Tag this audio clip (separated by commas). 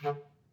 Wind instrument, Musical instrument, Music